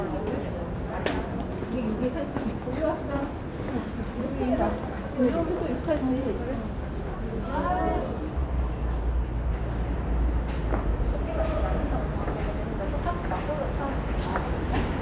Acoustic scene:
subway station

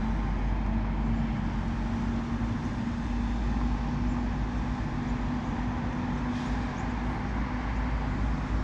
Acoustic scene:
street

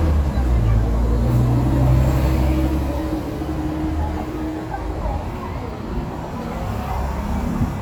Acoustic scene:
street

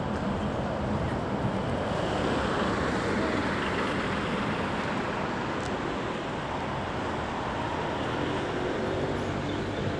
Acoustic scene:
street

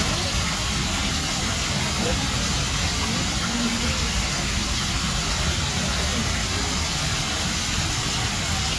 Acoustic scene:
park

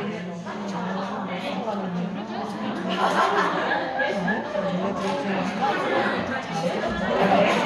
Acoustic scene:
crowded indoor space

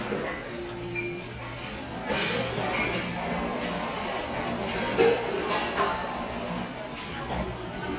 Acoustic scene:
cafe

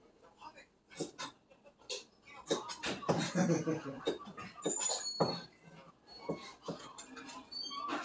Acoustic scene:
kitchen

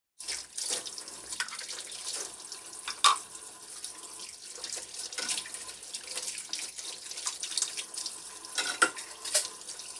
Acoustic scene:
kitchen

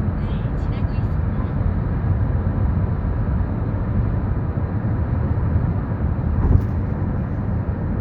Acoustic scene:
car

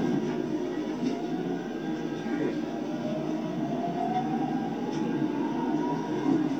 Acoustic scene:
subway train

